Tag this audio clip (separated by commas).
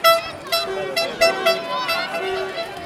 Human group actions, Crowd